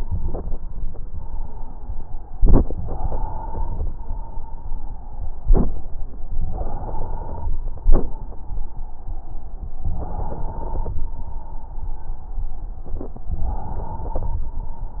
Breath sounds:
2.80-3.91 s: inhalation
3.90-6.11 s: exhalation
6.42-7.53 s: inhalation
7.52-9.65 s: exhalation
9.91-11.02 s: inhalation
10.97-13.31 s: exhalation
13.34-14.45 s: inhalation

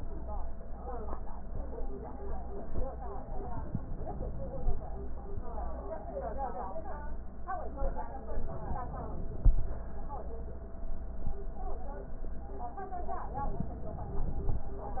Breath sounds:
8.29-9.64 s: inhalation
13.35-14.70 s: inhalation

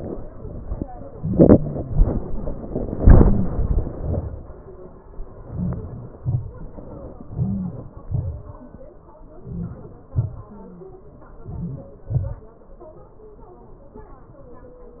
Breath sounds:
5.54-5.95 s: inhalation
6.20-6.57 s: exhalation
7.36-7.88 s: inhalation
8.12-8.48 s: exhalation
9.52-9.94 s: inhalation
10.18-10.57 s: exhalation
11.56-11.96 s: inhalation
12.22-12.51 s: exhalation

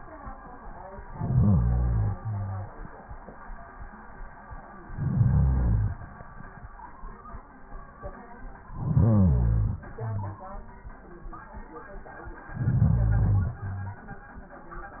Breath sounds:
1.11-2.15 s: inhalation
2.15-2.96 s: exhalation
4.77-6.02 s: inhalation
8.69-9.80 s: inhalation
9.83-10.87 s: exhalation
12.47-13.58 s: inhalation
13.57-14.24 s: exhalation

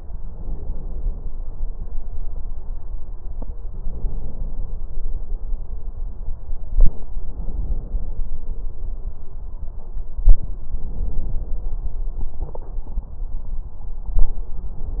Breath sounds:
0.20-1.27 s: inhalation
3.77-4.84 s: inhalation
7.26-8.34 s: inhalation
10.70-11.77 s: inhalation

